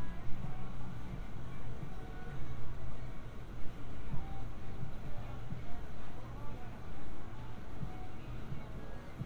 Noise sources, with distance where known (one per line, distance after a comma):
music from an unclear source, far